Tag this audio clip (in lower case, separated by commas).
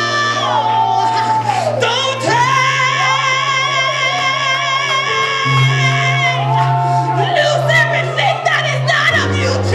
speech, singing, music